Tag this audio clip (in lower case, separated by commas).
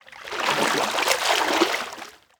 liquid, splatter